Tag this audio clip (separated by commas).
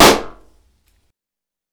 Explosion